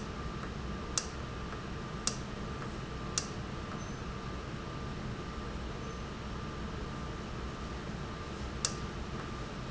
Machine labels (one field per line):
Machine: valve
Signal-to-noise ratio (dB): -6 dB